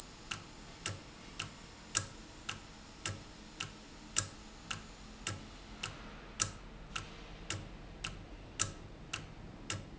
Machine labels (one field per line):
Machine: valve